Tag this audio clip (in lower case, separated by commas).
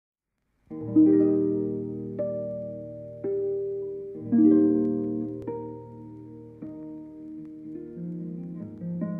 music, harp, piano